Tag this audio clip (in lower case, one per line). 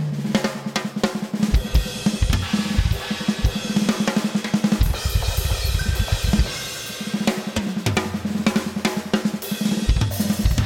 music
drum
drum kit
musical instrument
bass drum